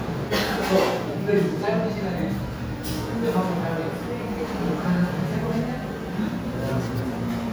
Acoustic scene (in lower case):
restaurant